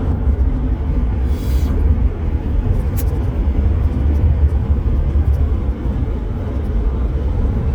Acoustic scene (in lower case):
car